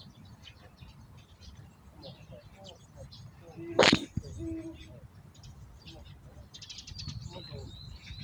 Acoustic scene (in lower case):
park